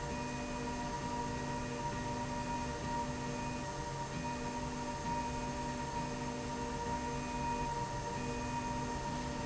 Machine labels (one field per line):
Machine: slide rail